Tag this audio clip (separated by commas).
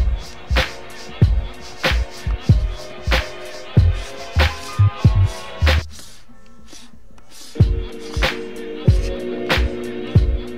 Music, inside a small room